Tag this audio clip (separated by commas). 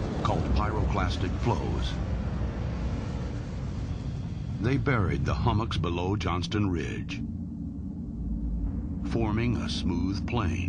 volcano explosion